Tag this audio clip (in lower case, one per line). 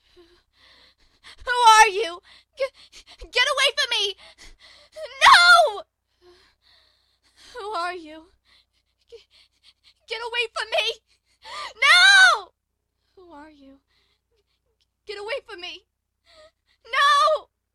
human voice
yell
shout